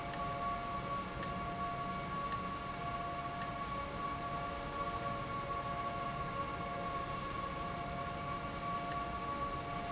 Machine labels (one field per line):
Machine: valve